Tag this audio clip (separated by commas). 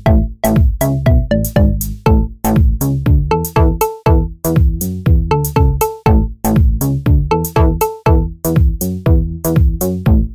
Music